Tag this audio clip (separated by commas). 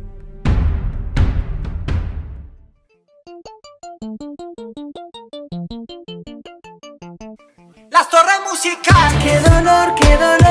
Music